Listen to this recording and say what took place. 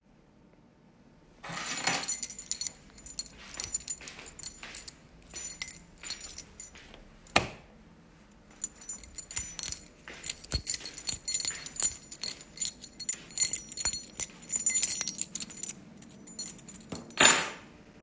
I picked up my keys from the table causing them to jingle loudly. I walked toward the light switch and turned off the light. I then jingled the keys again while walking back across the room.